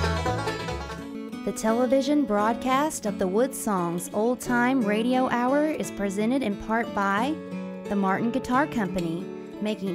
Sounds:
Speech, Music

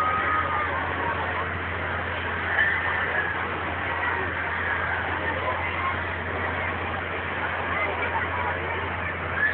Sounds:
Speech

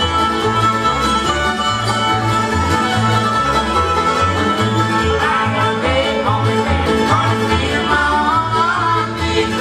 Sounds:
Music

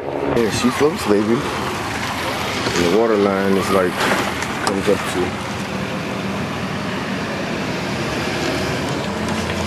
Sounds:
outside, rural or natural, Boat, Speech, Vehicle

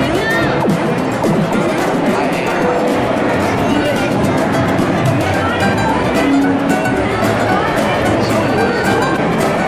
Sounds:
Speech, Music

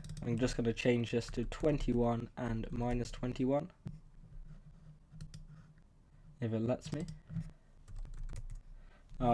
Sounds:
Speech

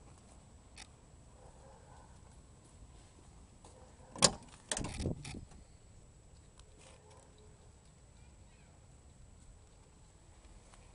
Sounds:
Silence, outside, urban or man-made, Vehicle

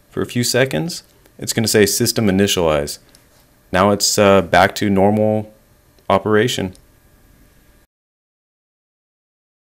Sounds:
Speech

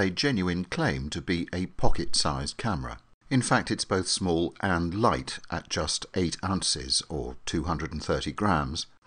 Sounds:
Speech

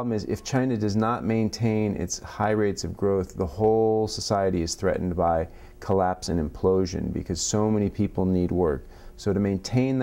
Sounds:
Speech

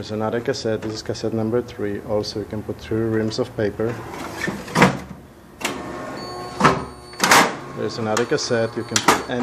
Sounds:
Speech, Printer

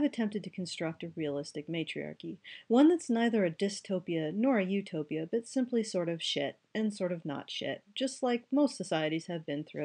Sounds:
Speech

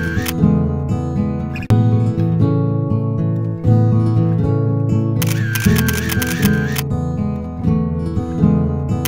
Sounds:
Single-lens reflex camera, Music

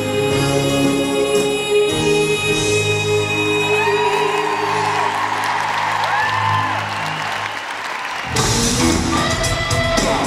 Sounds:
Music

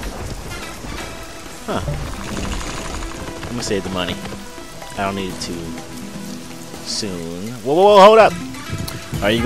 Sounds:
Music, Speech, Rain on surface

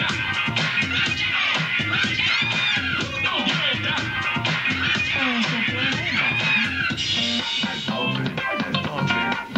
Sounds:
Scratching (performance technique), Music

